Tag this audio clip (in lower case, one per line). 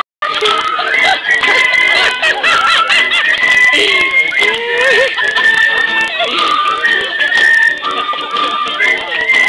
music